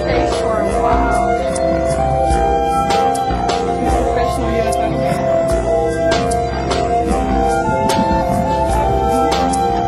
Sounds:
Speech, Music

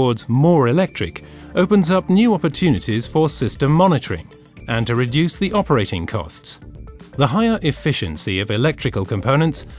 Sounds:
Music, Speech

